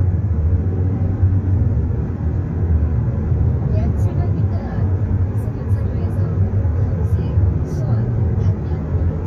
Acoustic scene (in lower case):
car